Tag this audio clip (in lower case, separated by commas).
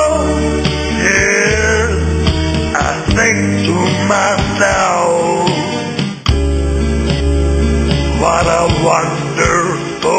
music